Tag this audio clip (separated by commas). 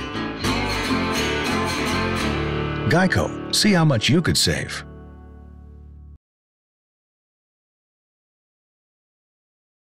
Music, Speech